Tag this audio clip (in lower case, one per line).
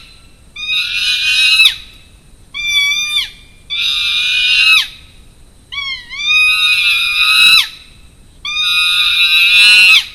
chimpanzee pant-hooting